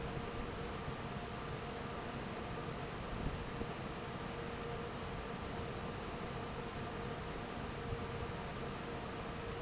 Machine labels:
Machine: fan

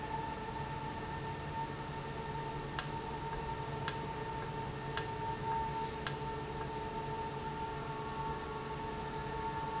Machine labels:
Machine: valve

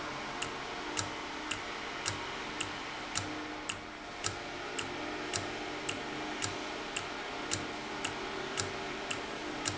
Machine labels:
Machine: valve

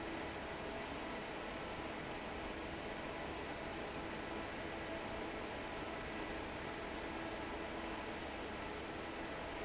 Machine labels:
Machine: fan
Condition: normal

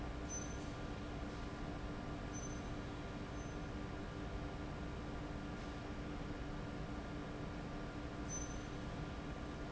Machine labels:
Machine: fan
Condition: abnormal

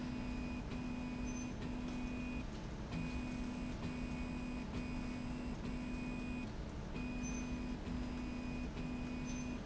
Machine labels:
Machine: slide rail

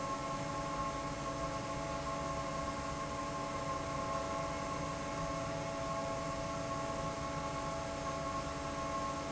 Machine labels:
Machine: fan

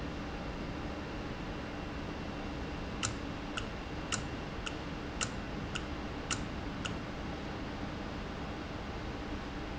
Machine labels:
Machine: valve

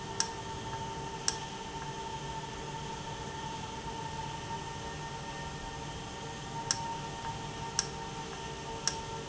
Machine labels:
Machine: valve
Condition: normal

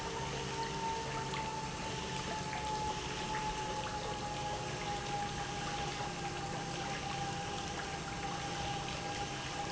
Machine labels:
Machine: pump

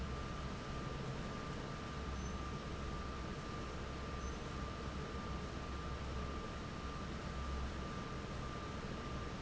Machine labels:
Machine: fan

